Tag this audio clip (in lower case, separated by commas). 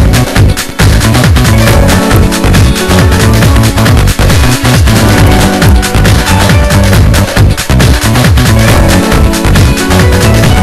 soundtrack music, music